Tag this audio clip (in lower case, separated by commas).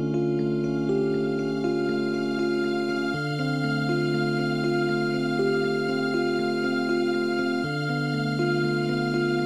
electric piano, music